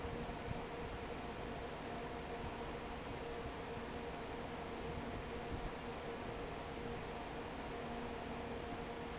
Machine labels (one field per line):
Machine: fan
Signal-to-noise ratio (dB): 6 dB